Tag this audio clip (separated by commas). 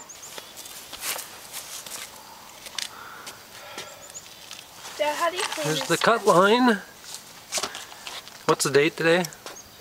Speech